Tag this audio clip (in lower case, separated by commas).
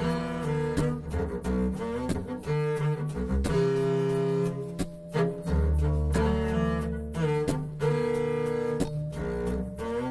music, double bass, playing double bass